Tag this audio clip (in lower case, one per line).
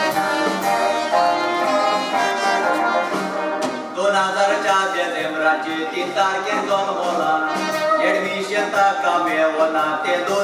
violin
bowed string instrument